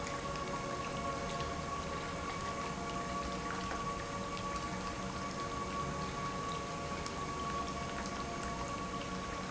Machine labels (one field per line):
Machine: pump